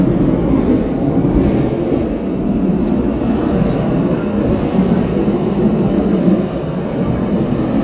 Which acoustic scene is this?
subway train